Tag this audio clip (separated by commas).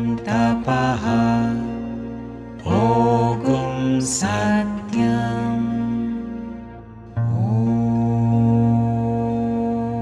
Music, Mantra